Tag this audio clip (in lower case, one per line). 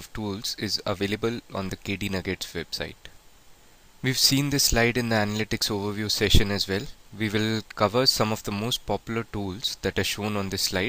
speech